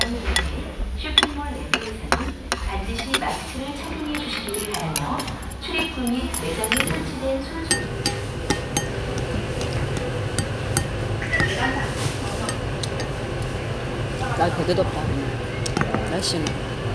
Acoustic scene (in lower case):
restaurant